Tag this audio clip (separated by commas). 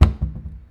home sounds, Cupboard open or close